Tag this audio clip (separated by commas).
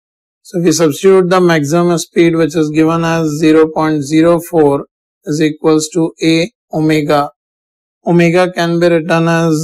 Speech